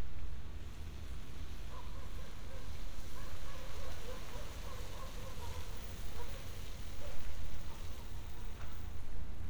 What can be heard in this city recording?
dog barking or whining